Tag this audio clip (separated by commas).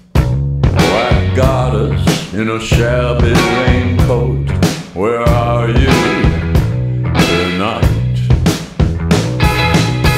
Music